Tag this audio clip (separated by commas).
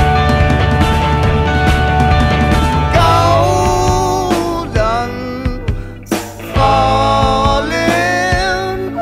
Music, Singing